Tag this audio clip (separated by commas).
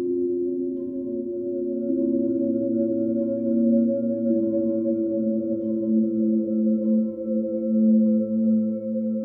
Music, Soundtrack music, Singing bowl